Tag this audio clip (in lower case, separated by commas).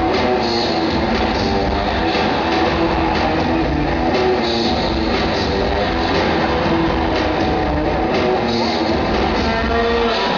music, inside a large room or hall